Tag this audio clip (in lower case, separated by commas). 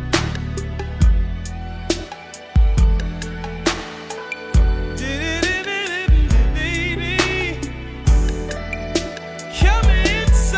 music